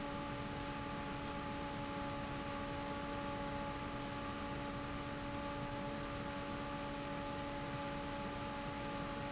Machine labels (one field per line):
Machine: fan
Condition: normal